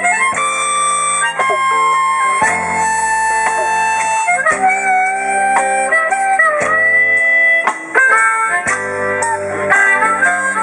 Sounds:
music, outside, rural or natural

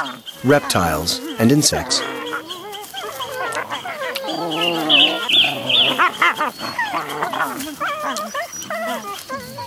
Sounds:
animal, speech, wild animals, outside, rural or natural

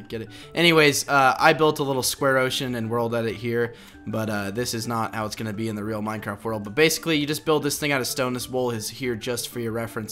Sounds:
speech, music

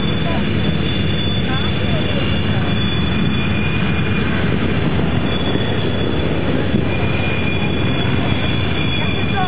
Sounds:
vehicle, airplane, aircraft, speech

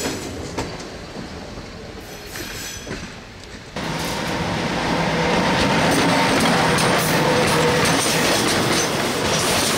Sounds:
train wheels squealing

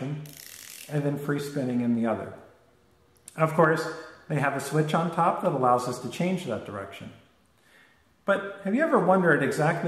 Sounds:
speech

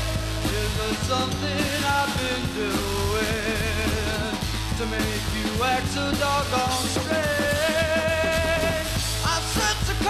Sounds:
music

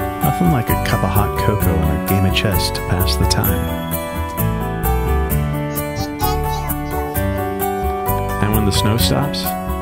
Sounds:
speech, music

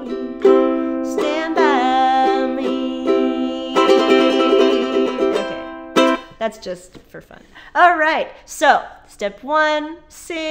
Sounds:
playing ukulele

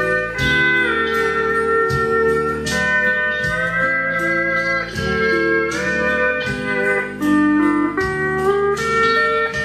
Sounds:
steel guitar, music

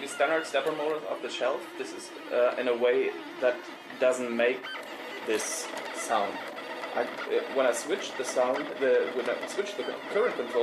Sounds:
printer, speech

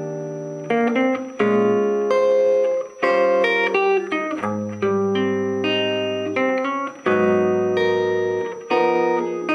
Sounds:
musical instrument, electric guitar, guitar, plucked string instrument, strum, music

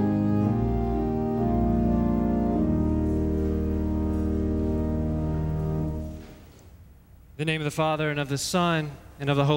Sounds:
music, speech

